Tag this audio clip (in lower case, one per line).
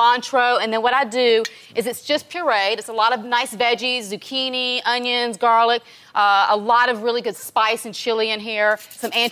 speech